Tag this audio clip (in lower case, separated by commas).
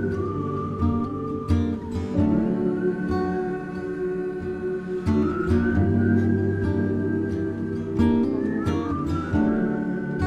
music